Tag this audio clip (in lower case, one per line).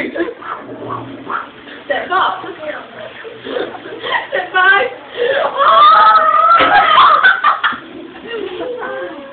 speech